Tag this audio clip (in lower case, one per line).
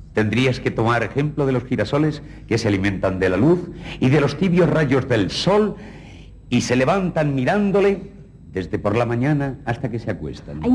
speech